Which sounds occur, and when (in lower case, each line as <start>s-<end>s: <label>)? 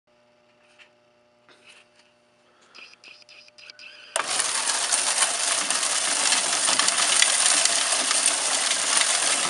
0.0s-9.4s: mechanisms
0.5s-0.5s: tick
0.5s-0.8s: generic impact sounds
1.4s-1.8s: generic impact sounds
1.9s-2.0s: tick
2.4s-3.0s: breathing
2.6s-4.1s: generic impact sounds
2.7s-2.8s: tick
3.0s-3.1s: tick
3.6s-3.7s: tick
4.1s-9.4s: coin (dropping)